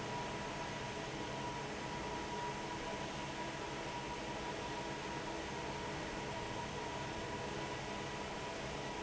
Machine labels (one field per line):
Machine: fan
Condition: normal